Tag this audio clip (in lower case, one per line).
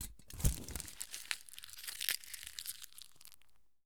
crinkling
crushing